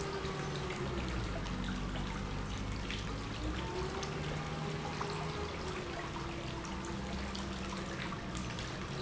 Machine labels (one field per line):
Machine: pump